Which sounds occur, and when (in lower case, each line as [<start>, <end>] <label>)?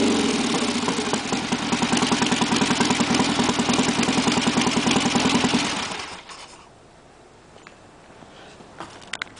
[0.00, 6.57] motorcycle
[6.19, 9.35] rustle
[7.54, 7.76] footsteps
[7.98, 8.58] footsteps
[8.71, 9.07] footsteps
[9.05, 9.35] generic impact sounds